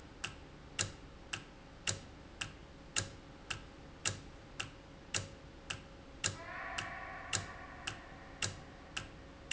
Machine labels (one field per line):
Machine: valve